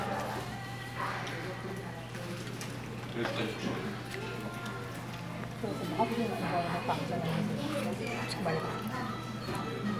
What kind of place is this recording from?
crowded indoor space